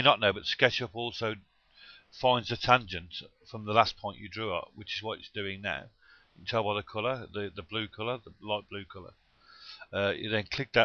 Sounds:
speech

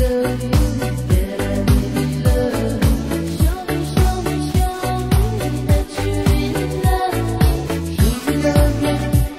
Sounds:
pop music, music

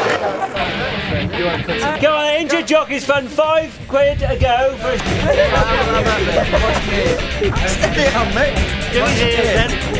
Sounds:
speech, music

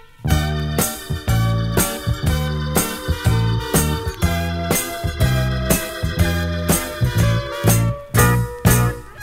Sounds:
soundtrack music, music

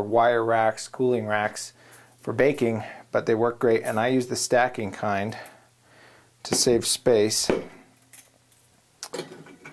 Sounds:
inside a small room, speech

